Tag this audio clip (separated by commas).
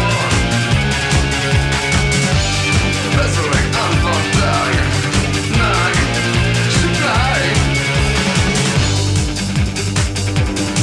Music